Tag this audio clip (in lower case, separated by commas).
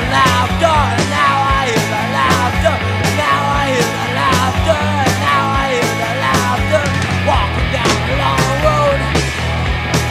music